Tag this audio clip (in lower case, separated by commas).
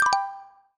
xylophone, mallet percussion, percussion, musical instrument, music